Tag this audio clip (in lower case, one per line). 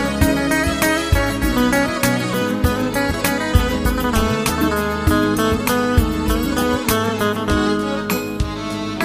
music